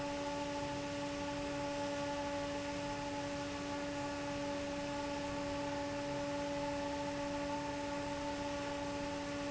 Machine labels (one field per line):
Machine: fan